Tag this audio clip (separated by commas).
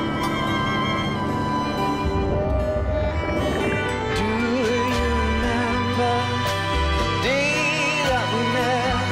Music